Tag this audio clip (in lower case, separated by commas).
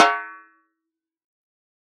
music, musical instrument, snare drum, percussion, drum